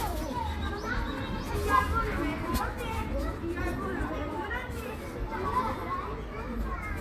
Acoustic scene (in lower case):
park